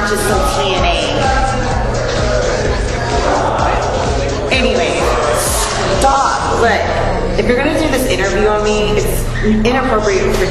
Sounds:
Speech, Music

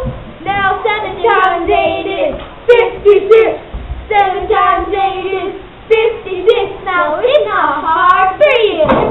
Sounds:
Child singing, Speech, kid speaking, inside a small room

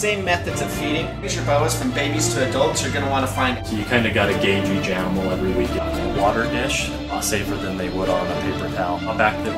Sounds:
Music, inside a small room, Speech

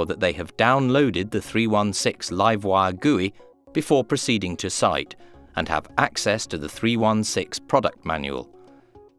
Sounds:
Music, Speech

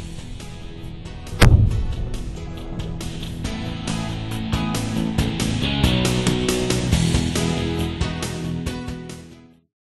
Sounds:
Music

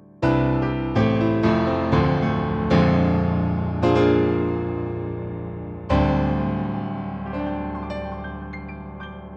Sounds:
Music

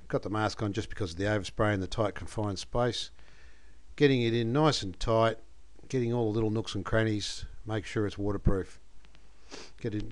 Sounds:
Speech

